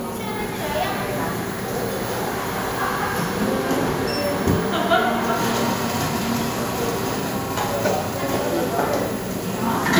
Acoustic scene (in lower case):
cafe